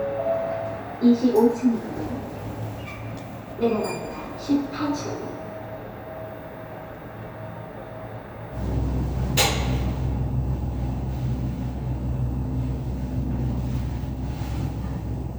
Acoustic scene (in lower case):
elevator